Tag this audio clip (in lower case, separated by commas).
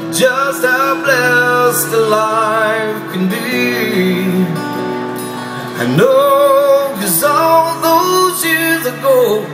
music, male singing